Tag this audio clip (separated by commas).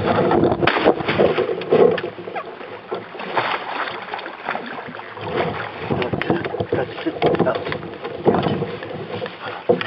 canoe, Animal, Water vehicle, Vehicle, Speech